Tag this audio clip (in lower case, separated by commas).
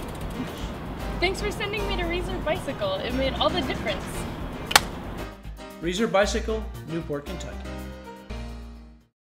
music, speech, bicycle